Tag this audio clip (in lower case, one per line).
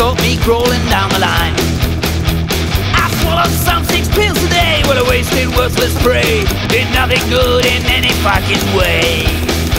music